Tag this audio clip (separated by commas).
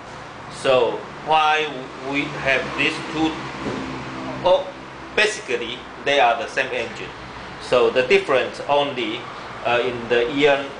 Speech